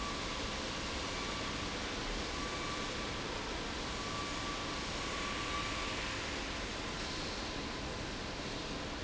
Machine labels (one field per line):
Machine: fan